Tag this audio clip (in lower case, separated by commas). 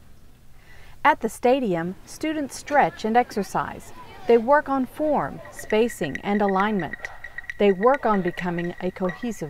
speech